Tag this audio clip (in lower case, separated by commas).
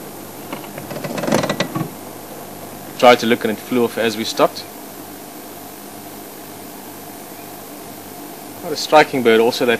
speech